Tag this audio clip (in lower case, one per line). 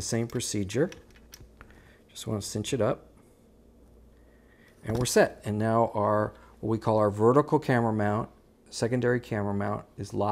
speech